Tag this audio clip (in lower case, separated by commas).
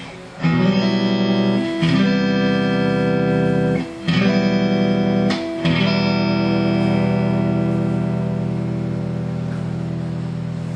plucked string instrument, guitar, acoustic guitar, music, musical instrument, strum